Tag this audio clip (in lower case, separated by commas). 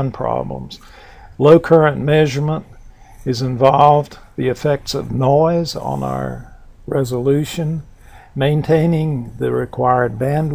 speech